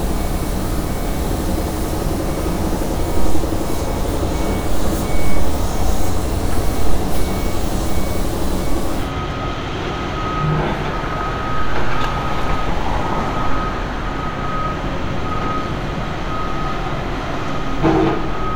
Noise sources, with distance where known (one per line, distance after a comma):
reverse beeper